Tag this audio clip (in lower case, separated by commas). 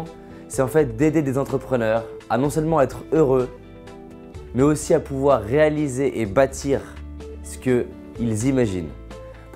music, speech